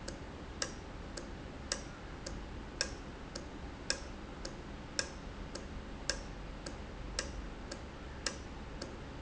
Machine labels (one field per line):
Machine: valve